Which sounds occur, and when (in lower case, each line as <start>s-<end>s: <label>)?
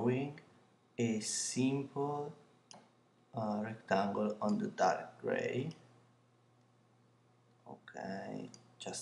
0.0s-0.3s: male speech
0.0s-9.0s: background noise
0.3s-0.4s: tick
0.9s-2.3s: male speech
2.6s-2.7s: tick
3.3s-5.1s: male speech
4.2s-4.3s: tick
4.4s-4.5s: tick
5.2s-5.7s: male speech
5.6s-5.7s: tick
7.5s-8.5s: male speech
8.5s-8.5s: tick
8.8s-9.0s: male speech